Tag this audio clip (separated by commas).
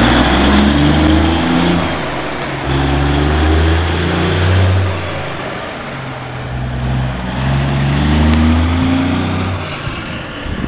Vehicle, Motor vehicle (road), Truck